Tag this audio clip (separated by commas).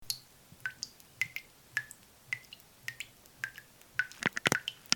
Drip, Liquid